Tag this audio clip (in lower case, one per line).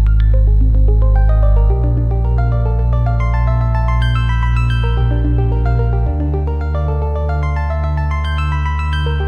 music